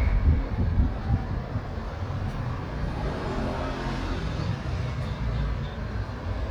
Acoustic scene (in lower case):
street